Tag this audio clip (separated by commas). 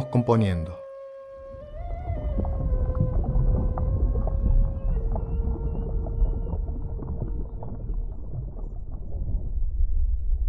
Speech, Music